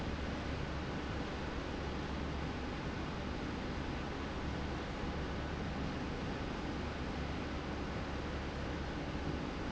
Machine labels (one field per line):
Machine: slide rail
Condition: normal